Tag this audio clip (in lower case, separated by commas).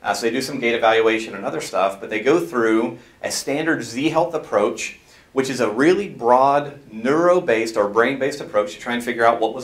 speech, inside a small room